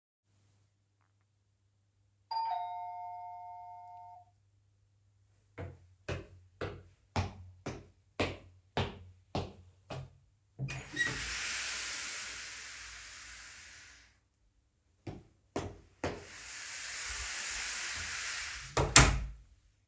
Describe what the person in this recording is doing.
I get home. I walk up the stair and open the door, go through it and closse it again.